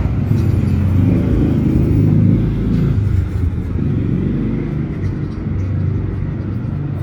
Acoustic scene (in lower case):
residential area